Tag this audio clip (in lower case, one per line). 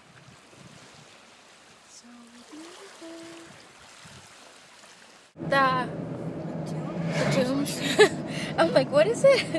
speech
water
dribble